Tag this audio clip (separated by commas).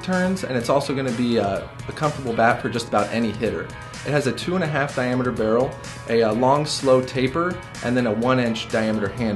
Music, Speech